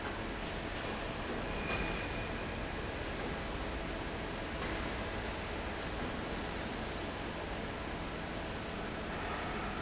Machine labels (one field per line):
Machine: fan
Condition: normal